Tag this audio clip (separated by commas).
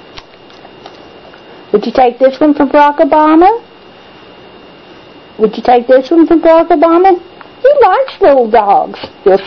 Speech